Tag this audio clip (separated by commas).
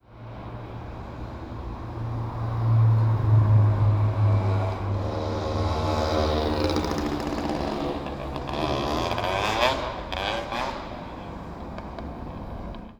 Vehicle, Motor vehicle (road), Motorcycle